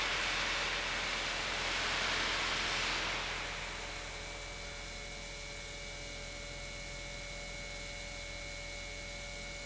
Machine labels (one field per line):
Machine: pump